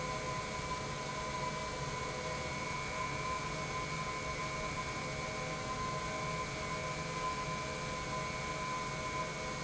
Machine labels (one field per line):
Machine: pump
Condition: normal